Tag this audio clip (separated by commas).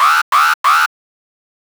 Alarm